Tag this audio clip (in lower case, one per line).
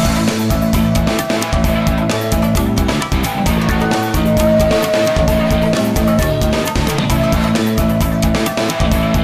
video game music
music